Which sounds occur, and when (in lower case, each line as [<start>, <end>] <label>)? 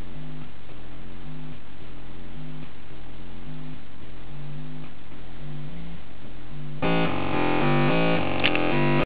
[0.00, 8.92] background noise
[0.00, 8.92] music